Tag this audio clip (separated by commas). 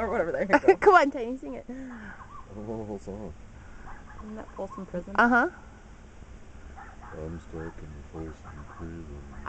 Speech